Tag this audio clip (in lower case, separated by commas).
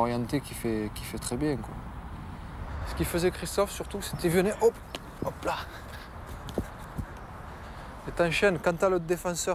shot football